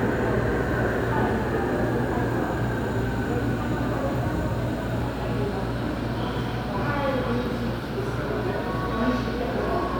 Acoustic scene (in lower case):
subway station